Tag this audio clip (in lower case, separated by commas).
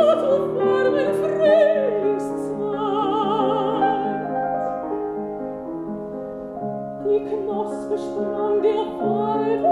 piano, keyboard (musical)